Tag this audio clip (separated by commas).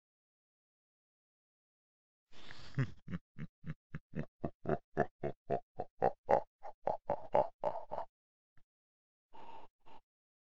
Laughter, Human voice